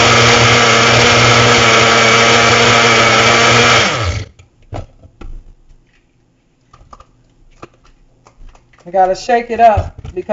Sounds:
speech, blender

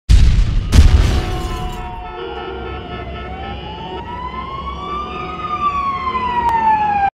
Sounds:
emergency vehicle, siren, police car (siren)

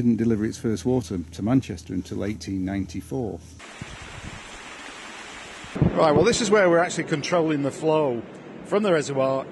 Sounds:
speech, stream

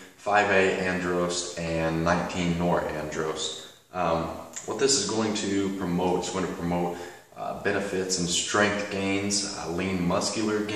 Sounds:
speech

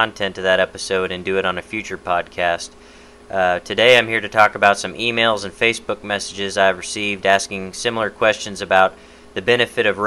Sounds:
speech

